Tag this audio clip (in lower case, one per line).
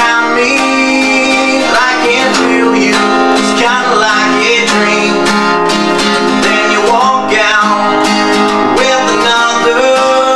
music